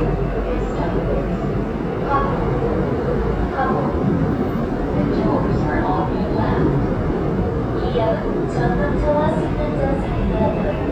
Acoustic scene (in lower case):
subway train